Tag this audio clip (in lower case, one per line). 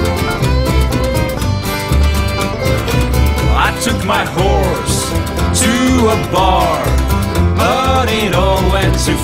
music